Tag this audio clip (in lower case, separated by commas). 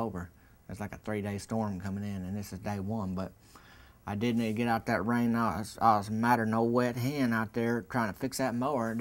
speech